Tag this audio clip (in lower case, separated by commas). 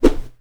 swoosh